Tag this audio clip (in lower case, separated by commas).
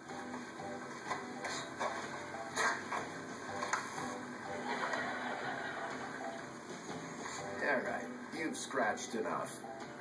music, speech